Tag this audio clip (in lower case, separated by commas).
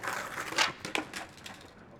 vehicle, skateboard